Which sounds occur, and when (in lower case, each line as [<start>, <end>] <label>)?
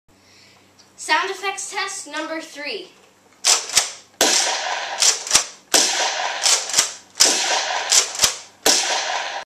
[0.00, 0.56] breathing
[0.00, 9.26] background noise
[0.67, 0.77] tick
[0.89, 2.85] child speech
[3.38, 3.95] generic impact sounds
[4.11, 4.94] gunfire
[4.91, 5.52] generic impact sounds
[5.65, 6.42] gunfire
[6.40, 6.97] generic impact sounds
[7.17, 7.87] gunfire
[7.80, 8.43] generic impact sounds
[8.60, 9.25] gunfire